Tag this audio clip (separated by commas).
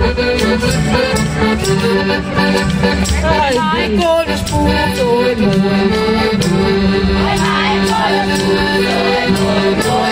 Music, Crowd, Folk music, Electronic music